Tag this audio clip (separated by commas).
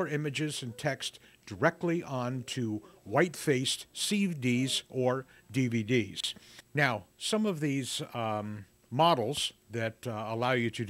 Speech